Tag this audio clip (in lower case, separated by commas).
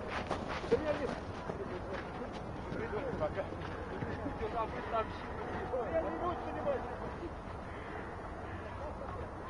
run, outside, urban or man-made, speech